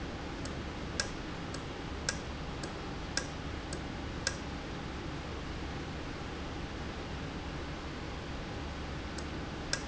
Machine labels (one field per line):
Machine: valve